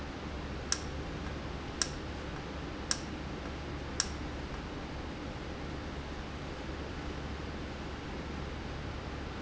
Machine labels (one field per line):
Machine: valve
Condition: normal